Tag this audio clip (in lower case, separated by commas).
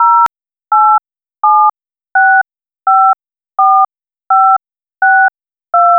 alarm, telephone